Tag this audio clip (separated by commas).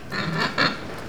Animal, livestock